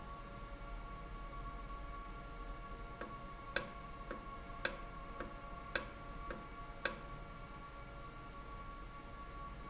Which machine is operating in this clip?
valve